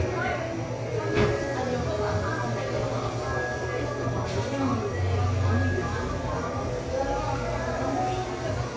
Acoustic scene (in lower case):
cafe